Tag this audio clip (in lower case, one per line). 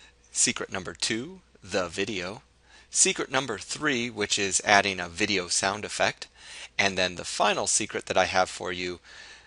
speech